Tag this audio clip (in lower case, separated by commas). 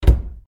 cupboard open or close, domestic sounds